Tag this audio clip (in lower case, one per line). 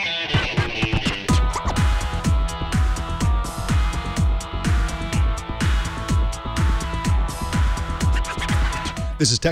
soundtrack music
music
speech